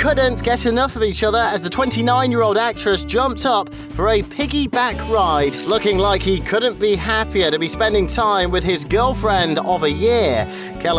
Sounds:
speech
music

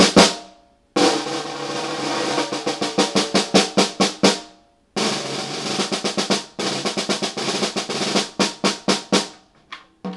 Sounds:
drum roll
bass drum
drum
percussion
snare drum
playing snare drum

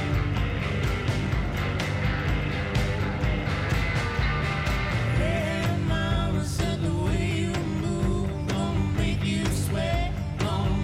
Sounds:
music

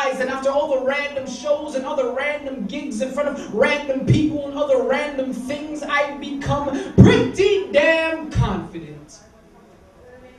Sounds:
speech

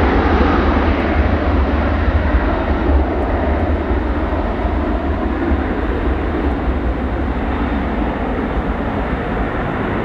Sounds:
airplane flyby

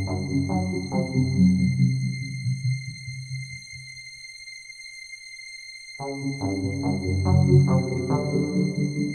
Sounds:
music
electronic music

